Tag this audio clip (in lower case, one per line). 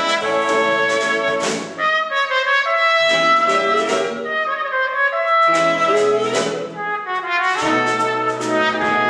trumpet
inside a large room or hall
brass instrument
orchestra
music